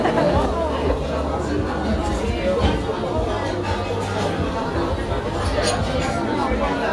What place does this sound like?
restaurant